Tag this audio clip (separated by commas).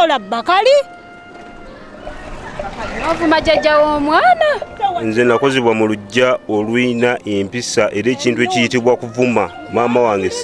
Music, outside, rural or natural, Speech